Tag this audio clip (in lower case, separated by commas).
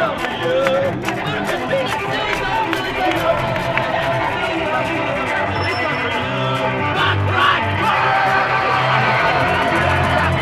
funk, music